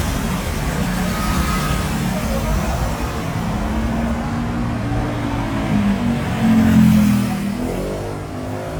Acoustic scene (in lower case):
street